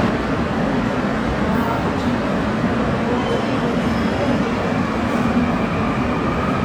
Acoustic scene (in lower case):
subway station